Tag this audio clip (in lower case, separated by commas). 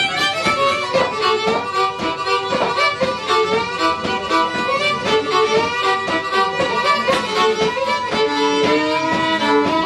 violin, music, musical instrument